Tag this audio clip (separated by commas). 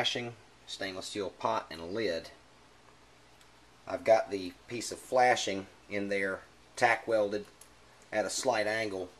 Speech